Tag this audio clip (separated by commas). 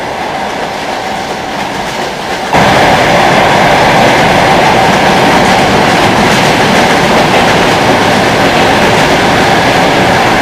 outside, rural or natural, Train, train wagon